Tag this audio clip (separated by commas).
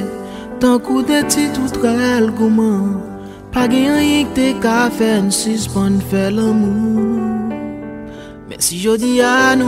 Music